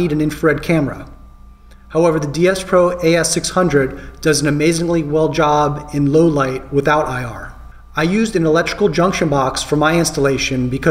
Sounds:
speech

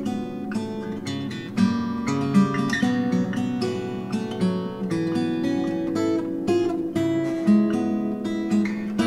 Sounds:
guitar, music, strum, musical instrument, plucked string instrument, acoustic guitar

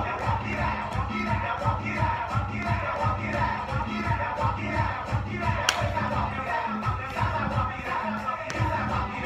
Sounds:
music, footsteps

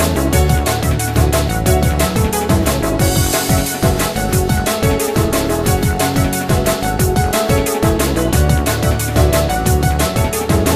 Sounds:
music

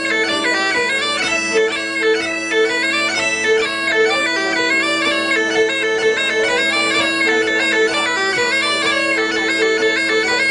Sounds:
music, violin, musical instrument

